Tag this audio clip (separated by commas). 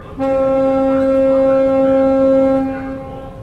Water vehicle, Vehicle